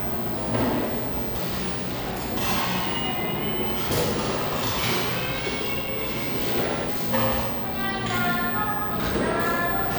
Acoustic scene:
cafe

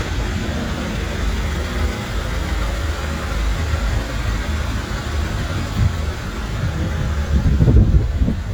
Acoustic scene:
street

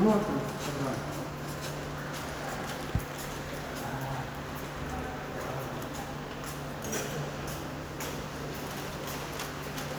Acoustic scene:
subway station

